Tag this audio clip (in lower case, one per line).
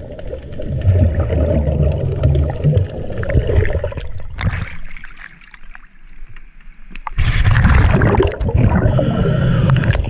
scuba diving